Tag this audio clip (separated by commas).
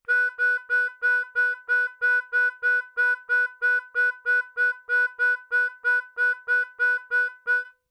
Musical instrument, Music, Harmonica